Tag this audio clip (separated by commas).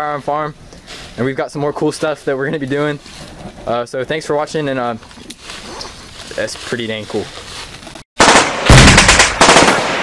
Machine gun, Fire, Speech